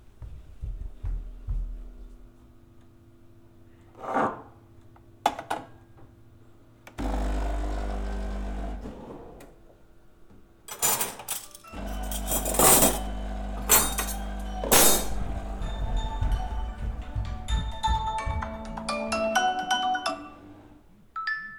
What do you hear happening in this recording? I walked to the coffee machine, put a cup on it, and turned it on. While the coffee was brewing, I sorted some cutlery. My phone started ringing so I walked towards it. When I reached, it stopped and received a notification.